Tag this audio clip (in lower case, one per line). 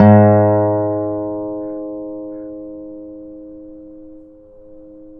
musical instrument
guitar
plucked string instrument
music
acoustic guitar